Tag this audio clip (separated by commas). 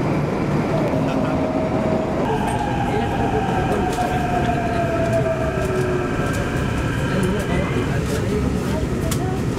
Speech